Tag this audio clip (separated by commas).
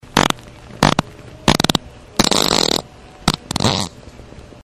Fart